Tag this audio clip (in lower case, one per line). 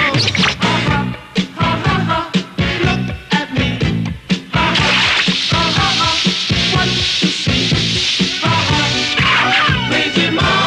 music